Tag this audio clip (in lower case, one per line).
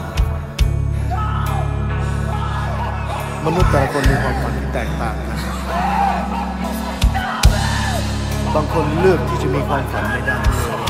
music
speech
scary music